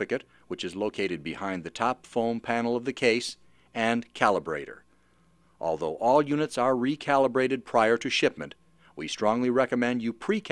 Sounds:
Speech

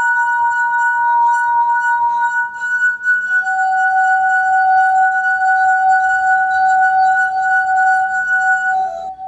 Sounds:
Music

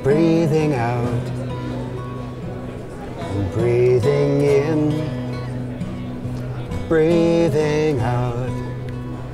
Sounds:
Music, Speech

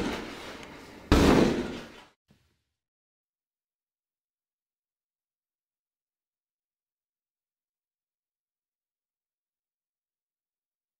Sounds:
Door

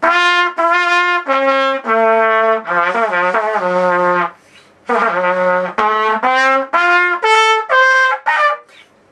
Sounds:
Trumpet, Music

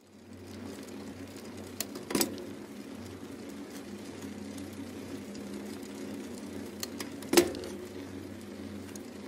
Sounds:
Vehicle, outside, urban or man-made, Bicycle

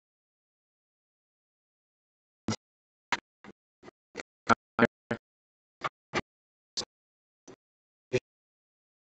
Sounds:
Speech

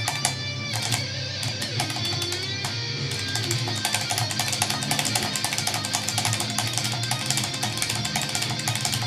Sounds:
Music

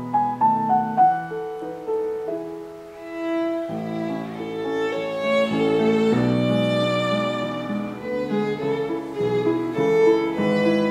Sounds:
fiddle, Music, Musical instrument

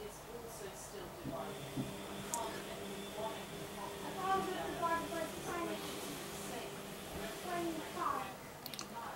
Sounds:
Speech

